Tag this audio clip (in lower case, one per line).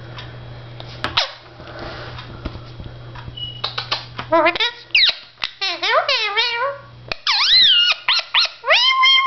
bird
domestic animals